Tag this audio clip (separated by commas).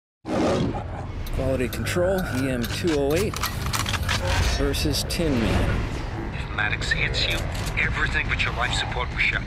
Music, Speech, inside a large room or hall